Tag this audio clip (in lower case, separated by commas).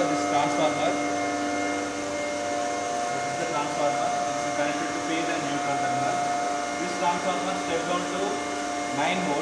mains hum, hum